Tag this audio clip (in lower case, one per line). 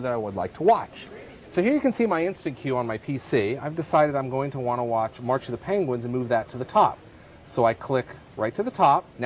speech